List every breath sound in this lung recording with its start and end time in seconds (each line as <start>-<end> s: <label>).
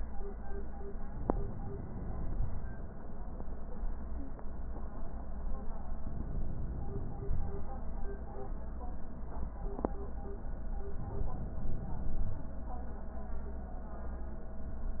1.18-2.59 s: inhalation
6.09-7.62 s: inhalation
7.36-7.67 s: wheeze
10.96-12.40 s: inhalation